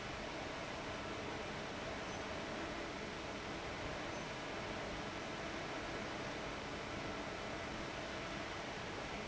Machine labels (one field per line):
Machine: fan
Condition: abnormal